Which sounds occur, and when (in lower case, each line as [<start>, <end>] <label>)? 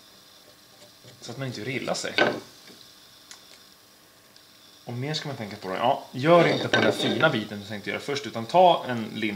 [0.01, 9.35] mechanisms
[1.20, 2.39] male speech
[4.81, 6.02] male speech
[6.13, 9.35] male speech